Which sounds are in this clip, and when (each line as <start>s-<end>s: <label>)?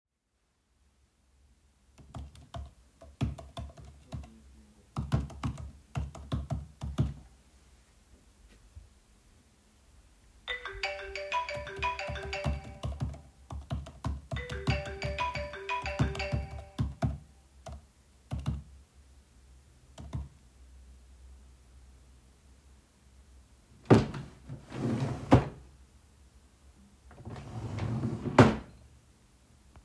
1.9s-7.3s: keyboard typing
10.3s-16.7s: phone ringing
11.6s-20.4s: keyboard typing
23.7s-25.7s: wardrobe or drawer
27.2s-28.8s: wardrobe or drawer